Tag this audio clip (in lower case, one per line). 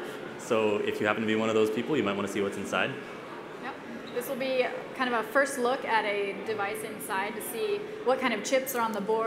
speech